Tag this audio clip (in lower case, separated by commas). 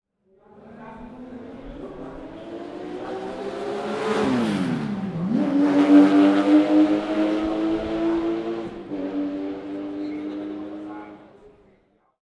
accelerating, engine